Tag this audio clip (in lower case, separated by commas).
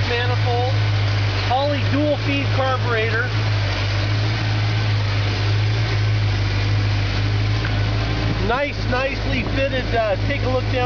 speech, vehicle, car, idling